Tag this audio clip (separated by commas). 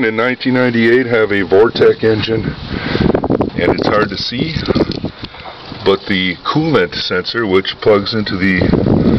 Speech